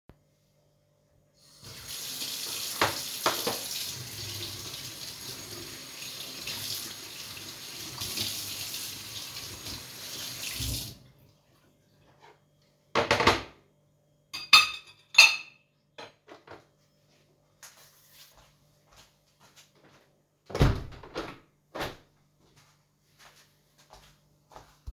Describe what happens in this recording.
I rinsed a dish under running tap water, placed it on the drying rack, and rearranged what was already on the rack. Then I walked to the window and opened it.